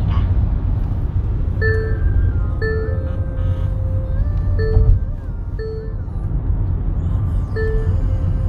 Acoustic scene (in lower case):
car